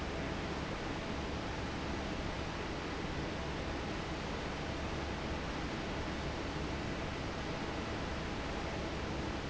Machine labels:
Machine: fan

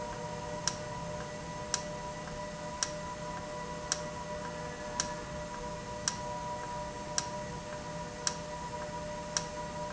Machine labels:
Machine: valve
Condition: normal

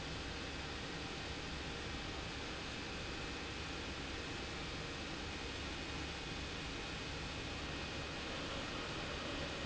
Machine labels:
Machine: pump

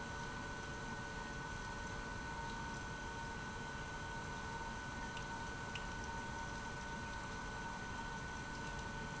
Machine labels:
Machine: pump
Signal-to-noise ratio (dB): 6 dB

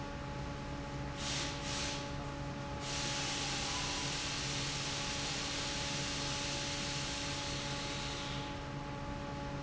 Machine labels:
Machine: fan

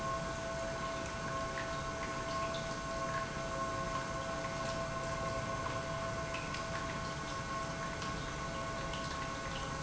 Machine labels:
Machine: pump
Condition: normal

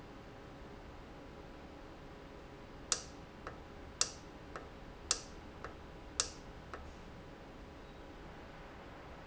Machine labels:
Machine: valve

